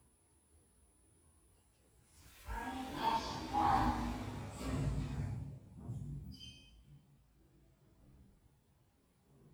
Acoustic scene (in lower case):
elevator